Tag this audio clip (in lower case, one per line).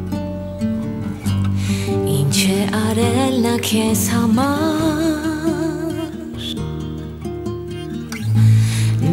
music